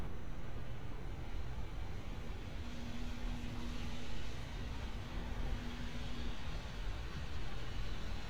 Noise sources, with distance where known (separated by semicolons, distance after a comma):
engine of unclear size, far